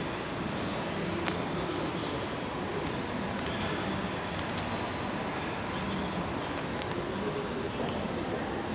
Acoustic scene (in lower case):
crowded indoor space